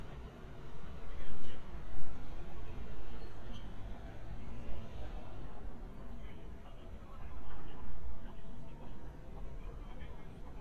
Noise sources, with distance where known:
person or small group talking, far

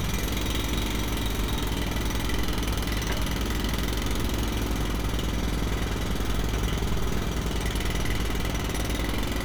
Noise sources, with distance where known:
jackhammer, near

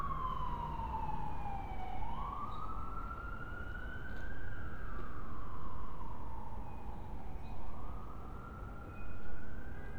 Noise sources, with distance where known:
siren, far

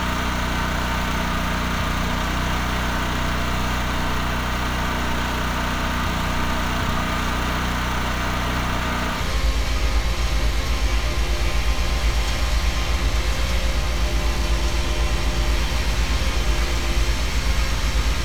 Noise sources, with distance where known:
rock drill

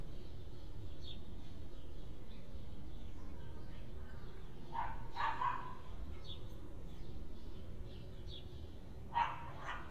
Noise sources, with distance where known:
dog barking or whining, far

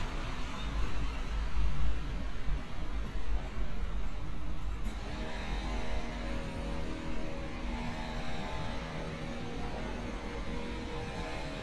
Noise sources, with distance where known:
small-sounding engine; large-sounding engine

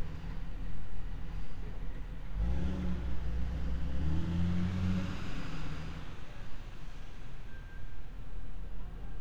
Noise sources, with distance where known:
engine of unclear size

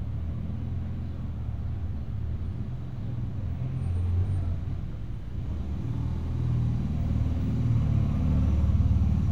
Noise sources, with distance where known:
engine of unclear size

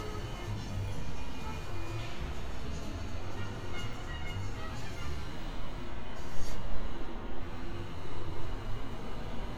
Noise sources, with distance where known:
music from a fixed source

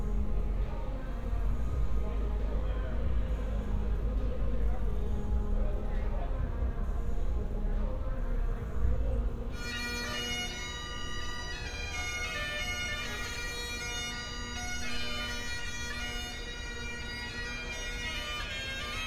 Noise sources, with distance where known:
music from a fixed source

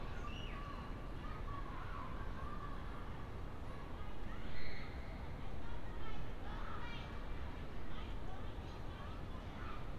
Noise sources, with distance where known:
person or small group shouting, far

